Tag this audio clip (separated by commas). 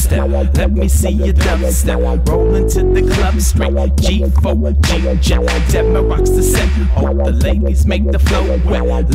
Electronic music, Music, Dubstep